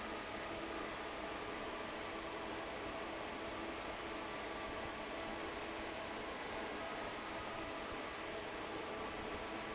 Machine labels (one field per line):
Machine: fan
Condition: normal